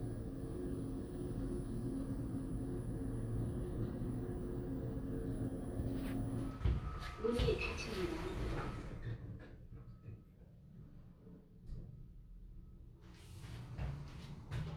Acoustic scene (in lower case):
elevator